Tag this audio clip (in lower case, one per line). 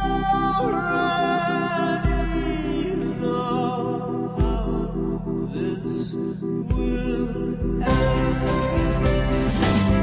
music